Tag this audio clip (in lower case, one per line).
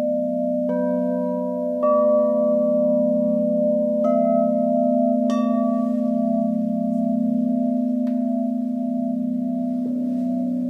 tubular bells